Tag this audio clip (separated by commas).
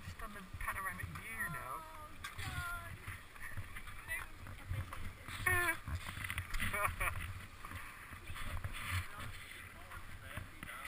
Speech